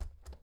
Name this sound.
window closing